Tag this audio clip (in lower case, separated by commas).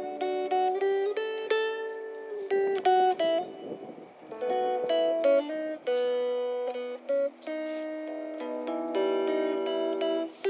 mandolin, music